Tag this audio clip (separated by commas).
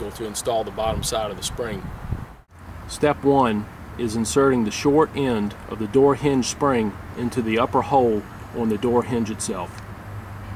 Speech